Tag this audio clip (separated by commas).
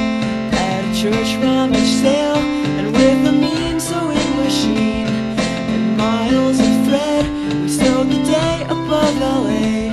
Music